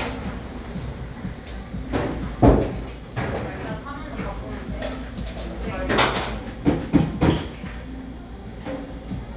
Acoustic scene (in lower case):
cafe